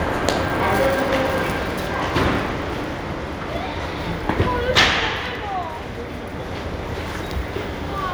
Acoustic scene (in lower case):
subway station